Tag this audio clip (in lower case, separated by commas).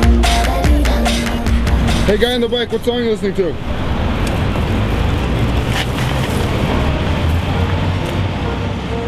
outside, urban or man-made, speech, music